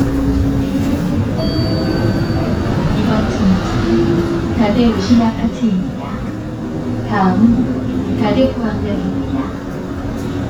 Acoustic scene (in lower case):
bus